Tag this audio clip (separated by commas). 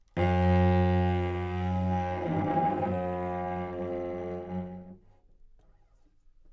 Musical instrument, Bowed string instrument, Music